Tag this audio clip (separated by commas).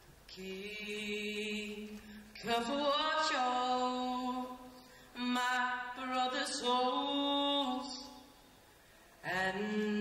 Male singing